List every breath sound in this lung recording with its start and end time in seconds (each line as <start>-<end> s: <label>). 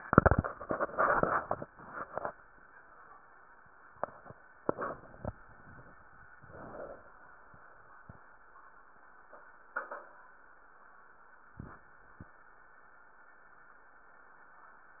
5.39-6.26 s: exhalation
6.33-7.21 s: inhalation